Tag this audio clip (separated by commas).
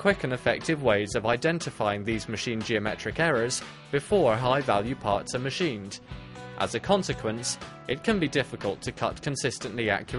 Speech, Music